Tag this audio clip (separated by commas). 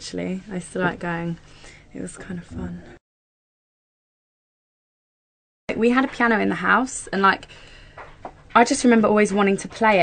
Speech